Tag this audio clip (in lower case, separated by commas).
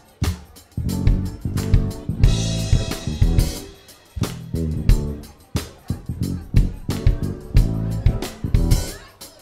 speech, music